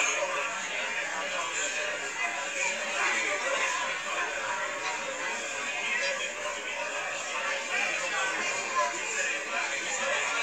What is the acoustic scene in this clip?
crowded indoor space